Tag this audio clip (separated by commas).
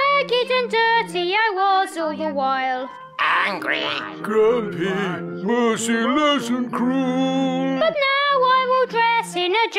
Musical instrument, Music